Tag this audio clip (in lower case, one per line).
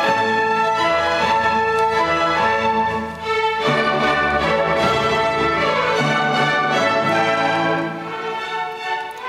music